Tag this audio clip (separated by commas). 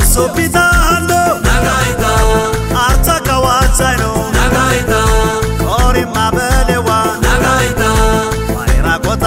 Music